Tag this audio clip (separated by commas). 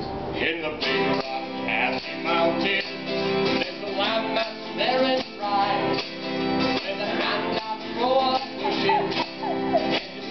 Music